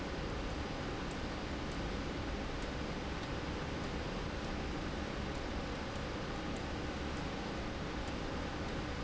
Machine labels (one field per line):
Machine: slide rail